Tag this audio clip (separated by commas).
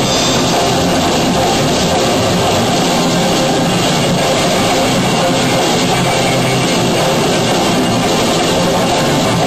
Music